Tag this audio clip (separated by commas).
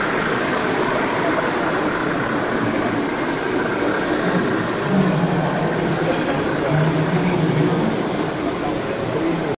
Printer, Speech